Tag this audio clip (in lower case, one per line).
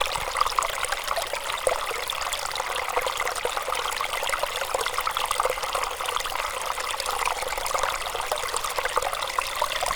stream
water